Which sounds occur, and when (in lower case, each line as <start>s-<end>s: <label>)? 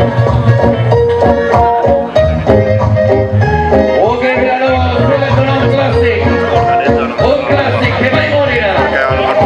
0.0s-9.4s: music
4.1s-9.4s: male singing
6.7s-9.4s: man speaking